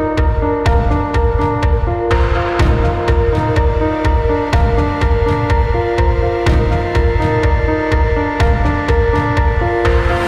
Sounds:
ambient music

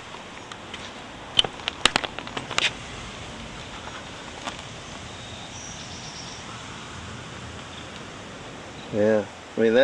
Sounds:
speech

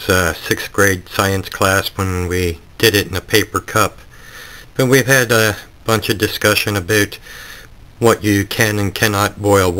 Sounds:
speech

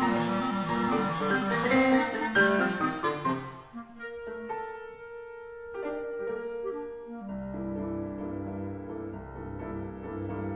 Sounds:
playing clarinet

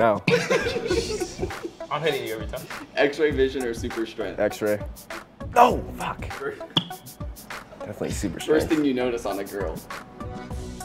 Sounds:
speech
music

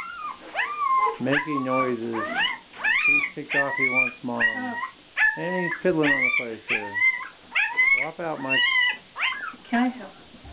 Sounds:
pets
animal
dog
speech

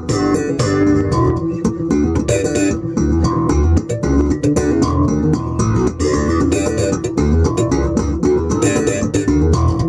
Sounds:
musical instrument
guitar
music
plucked string instrument

